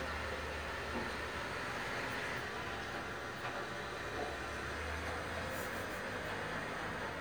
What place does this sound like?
residential area